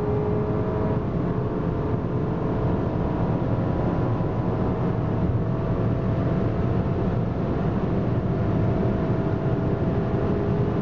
A car is speeding up as you can hear it coasts along the road